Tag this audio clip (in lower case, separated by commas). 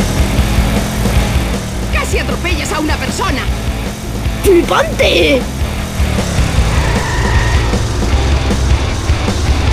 music, speech